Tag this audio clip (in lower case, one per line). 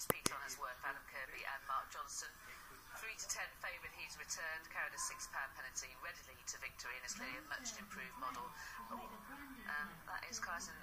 speech